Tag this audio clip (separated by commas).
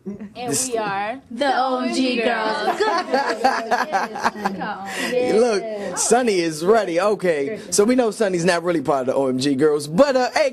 Speech